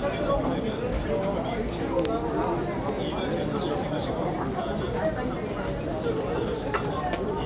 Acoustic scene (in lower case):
crowded indoor space